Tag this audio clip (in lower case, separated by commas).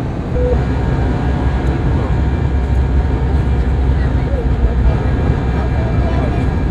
vehicle, aircraft